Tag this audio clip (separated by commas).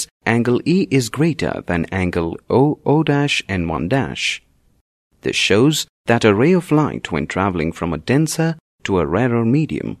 Speech